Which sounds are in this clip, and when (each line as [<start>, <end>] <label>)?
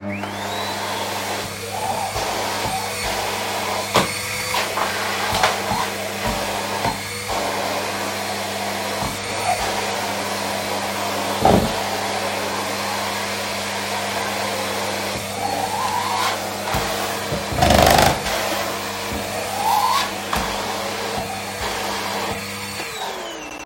[0.01, 23.66] vacuum cleaner